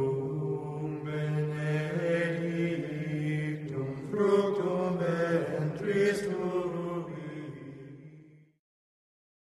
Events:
0.0s-8.5s: chant

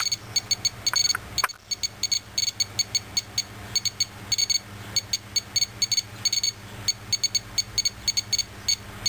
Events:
0.0s-0.1s: bleep
0.0s-9.0s: mechanisms
0.3s-0.7s: bleep
0.8s-1.1s: bleep
1.3s-1.5s: bleep
1.6s-1.8s: bleep
2.0s-2.2s: bleep
2.3s-2.6s: bleep
2.7s-3.0s: bleep
3.1s-3.4s: bleep
3.7s-4.0s: bleep
4.2s-4.6s: bleep
4.9s-5.2s: bleep
5.3s-5.4s: bleep
5.5s-5.7s: bleep
5.8s-6.0s: bleep
6.2s-6.5s: bleep
6.8s-7.0s: bleep
7.1s-7.4s: bleep
7.5s-7.6s: bleep
7.8s-7.9s: bleep
8.0s-8.2s: bleep
8.3s-8.4s: bleep
8.6s-8.8s: bleep

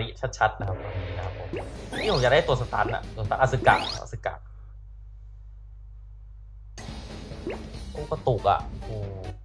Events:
0.0s-1.5s: male speech
0.0s-9.4s: video game sound
0.7s-1.3s: sound effect
1.2s-1.2s: clicking
1.5s-1.6s: sound effect
1.7s-4.1s: music
1.8s-2.3s: sound effect
1.9s-3.0s: male speech
2.8s-3.0s: sound effect
3.1s-4.4s: male speech
3.6s-4.0s: sound effect
6.7s-9.4s: music
7.4s-7.5s: sound effect
8.0s-8.6s: male speech
8.8s-9.4s: human voice

